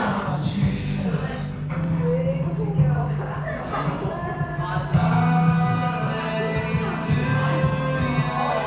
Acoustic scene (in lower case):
cafe